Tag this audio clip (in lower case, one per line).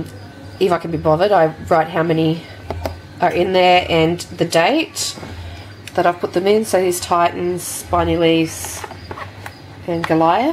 speech